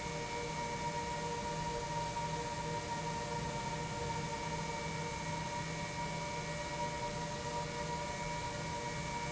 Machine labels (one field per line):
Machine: pump